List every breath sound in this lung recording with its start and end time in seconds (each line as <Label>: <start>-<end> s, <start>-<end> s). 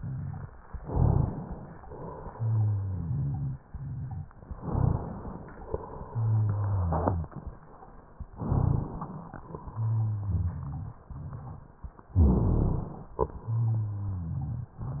Inhalation: 0.72-1.75 s, 4.50-5.68 s, 8.33-9.40 s, 12.07-13.19 s
Exhalation: 1.81-4.32 s, 5.74-7.73 s, 9.46-11.97 s, 13.23-15.00 s
Rhonchi: 0.80-1.36 s, 2.33-4.30 s, 4.57-5.13 s, 6.08-7.32 s, 8.39-9.09 s, 9.67-11.70 s, 12.14-12.84 s, 13.41-15.00 s